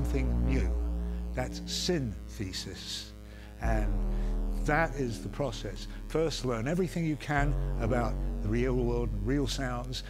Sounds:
speech
music

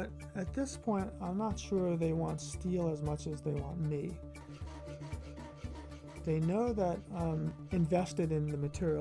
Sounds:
speech
music

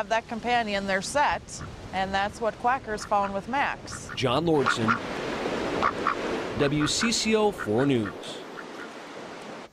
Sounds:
zebra braying

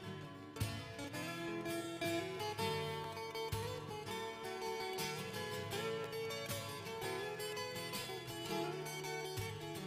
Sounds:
music

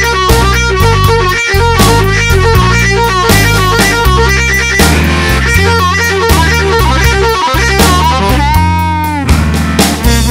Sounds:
playing harmonica

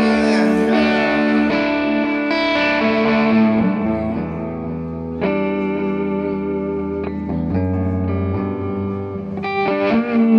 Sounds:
musical instrument
singing
guitar
plucked string instrument
distortion
music

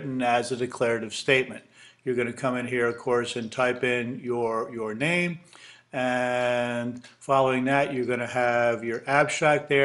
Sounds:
speech

